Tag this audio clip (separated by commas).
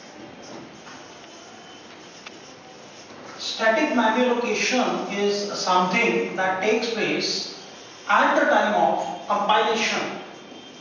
Speech